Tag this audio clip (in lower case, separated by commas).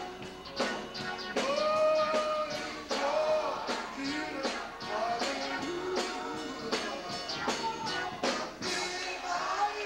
male singing, music